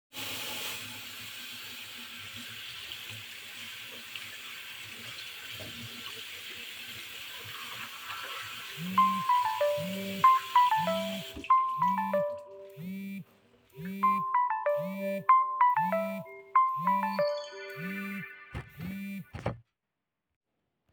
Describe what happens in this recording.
I was washing my hands when the phone rang. I wiped my hands and took the phone.